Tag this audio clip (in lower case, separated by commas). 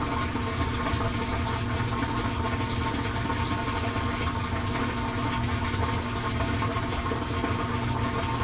engine